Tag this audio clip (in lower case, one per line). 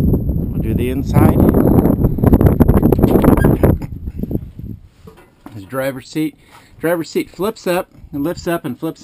speech